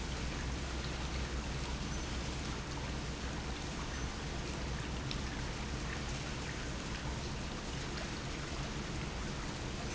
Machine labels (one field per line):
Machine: pump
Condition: normal